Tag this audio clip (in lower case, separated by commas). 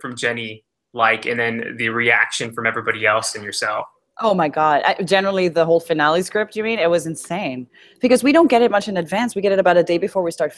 speech